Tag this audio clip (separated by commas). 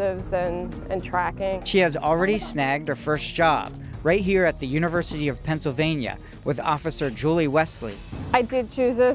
Music, Speech